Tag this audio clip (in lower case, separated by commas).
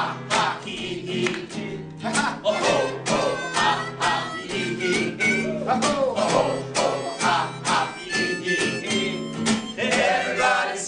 music